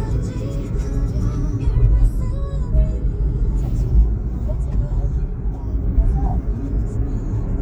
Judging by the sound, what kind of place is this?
car